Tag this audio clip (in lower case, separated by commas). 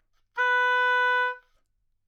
musical instrument, wind instrument, music